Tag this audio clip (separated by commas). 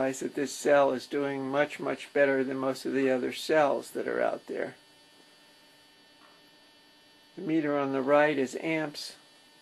Speech